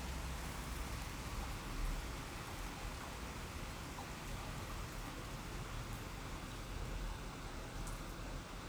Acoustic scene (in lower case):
residential area